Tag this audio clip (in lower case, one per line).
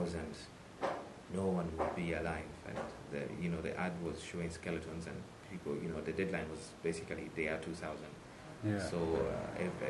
speech